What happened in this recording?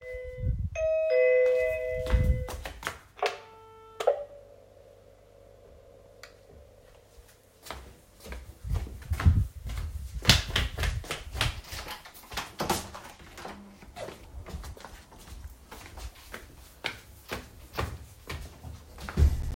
The doorbell rang. I checked on the camera system and went to the door to open it. Turned the door lock and opened. Finally walked back upstairs.